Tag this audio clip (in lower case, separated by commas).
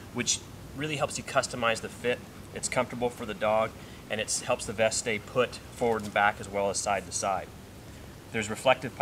speech